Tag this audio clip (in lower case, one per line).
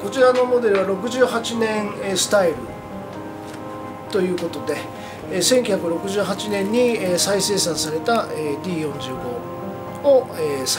musical instrument
plucked string instrument
guitar
music
acoustic guitar
speech